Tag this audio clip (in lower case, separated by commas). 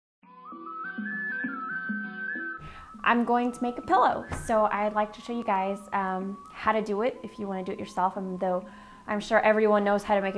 music, speech